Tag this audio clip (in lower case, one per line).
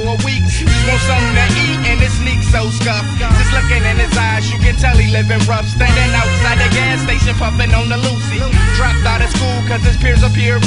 guitar
musical instrument
plucked string instrument
music